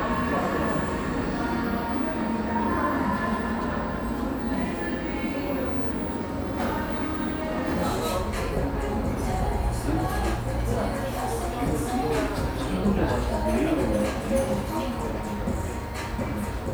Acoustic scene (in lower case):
cafe